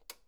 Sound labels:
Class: switch; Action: being turned off; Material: plastic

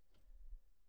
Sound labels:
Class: cupboard; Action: opening; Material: wooden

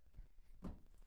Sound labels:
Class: cupboard; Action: closing; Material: fibreboard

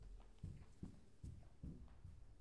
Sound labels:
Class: footsteps; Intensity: medium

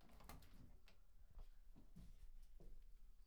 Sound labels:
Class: window; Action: opening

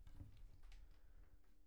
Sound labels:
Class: cupboard; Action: opening; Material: wooden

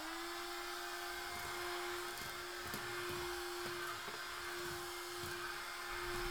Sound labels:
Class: vacuum cleaner; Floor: tiled floor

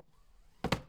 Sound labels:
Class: drawer; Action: closing; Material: wooden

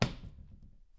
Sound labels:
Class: cupboard; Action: closing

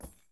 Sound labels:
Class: object falling; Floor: carpet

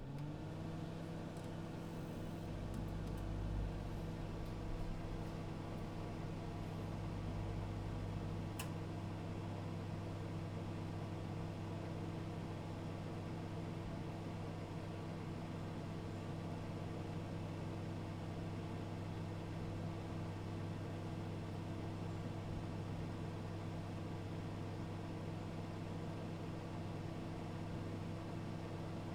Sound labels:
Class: microwave oven; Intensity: low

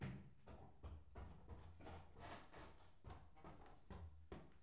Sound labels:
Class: footsteps; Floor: wooden floor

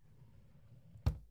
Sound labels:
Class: drawer; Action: closing; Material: wooden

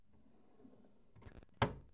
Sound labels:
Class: drawer; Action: closing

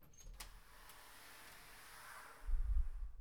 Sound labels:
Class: door; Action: opening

